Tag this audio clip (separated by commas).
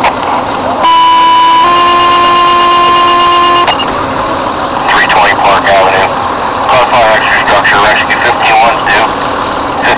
Vehicle, Speech